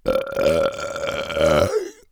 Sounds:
burping

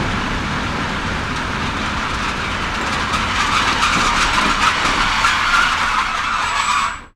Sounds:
rail transport
train
vehicle

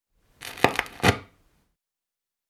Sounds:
crackle

